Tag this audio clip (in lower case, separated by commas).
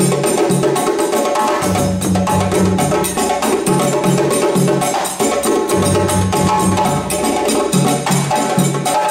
playing djembe